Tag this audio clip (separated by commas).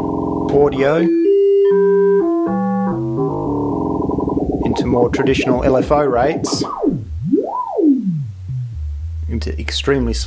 Synthesizer, Speech